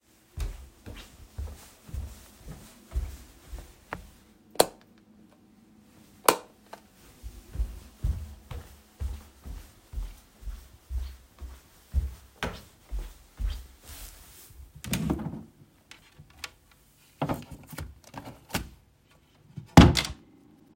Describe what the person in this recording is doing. I walked into the room, turned on the light, went to wardrobe, opened it, searched some documents and closed the wardrobe